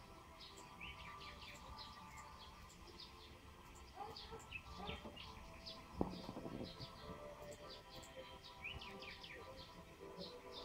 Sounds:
music

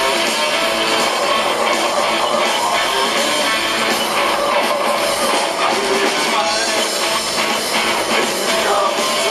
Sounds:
guitar
music
plucked string instrument
musical instrument

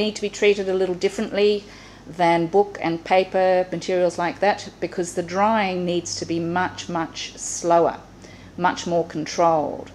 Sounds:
speech

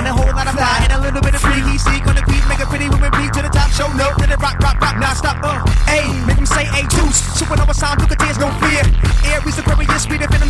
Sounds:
rhythm and blues
music
pop music

